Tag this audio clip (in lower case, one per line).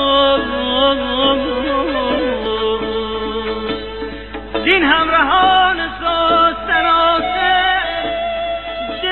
music
middle eastern music